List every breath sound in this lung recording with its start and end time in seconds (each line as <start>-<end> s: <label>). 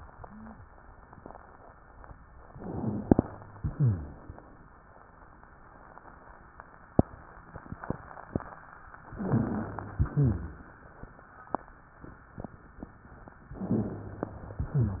2.52-3.23 s: inhalation
2.52-3.23 s: rhonchi
3.55-4.25 s: exhalation
3.55-4.25 s: rhonchi
9.13-9.96 s: inhalation
9.13-9.96 s: rhonchi
9.98-10.70 s: exhalation
9.98-10.70 s: rhonchi
13.62-14.57 s: inhalation
13.62-14.57 s: rhonchi
14.59-15.00 s: exhalation
14.59-15.00 s: rhonchi